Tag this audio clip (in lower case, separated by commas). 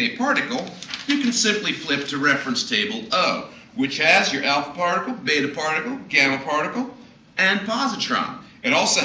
speech